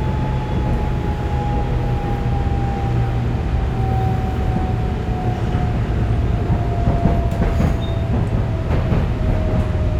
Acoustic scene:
subway train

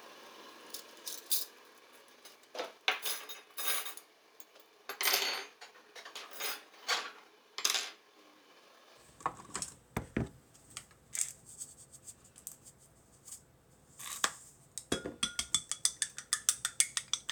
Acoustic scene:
kitchen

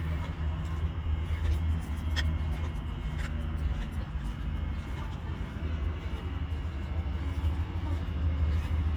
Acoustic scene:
park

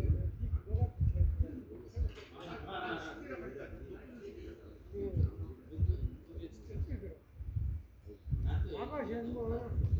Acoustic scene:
residential area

